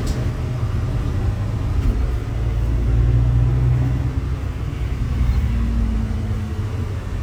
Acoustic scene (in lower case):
bus